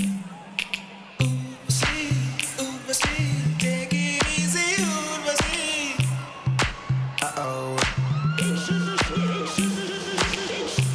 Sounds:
music

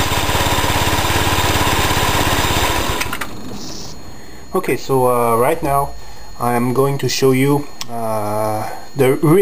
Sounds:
speech
tools

